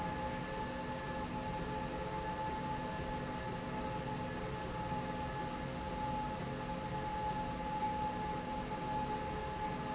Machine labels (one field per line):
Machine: slide rail